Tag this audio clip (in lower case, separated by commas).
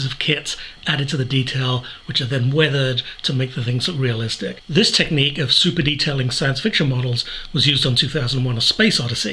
speech